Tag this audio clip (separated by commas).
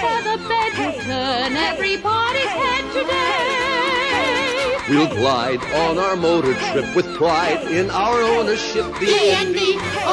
Speech, Music